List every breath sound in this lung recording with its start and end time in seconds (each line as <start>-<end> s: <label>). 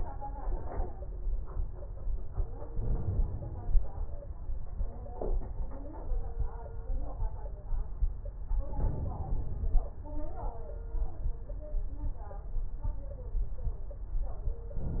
2.70-3.80 s: inhalation
2.70-3.80 s: crackles
8.73-9.82 s: inhalation